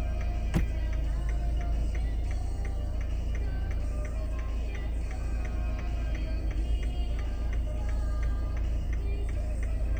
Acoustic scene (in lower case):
car